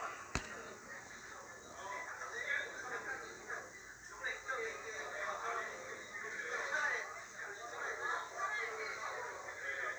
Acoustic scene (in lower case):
restaurant